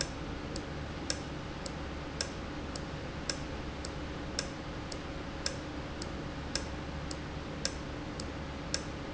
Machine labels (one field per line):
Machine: valve